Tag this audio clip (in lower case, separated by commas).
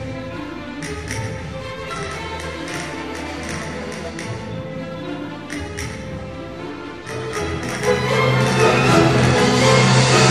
music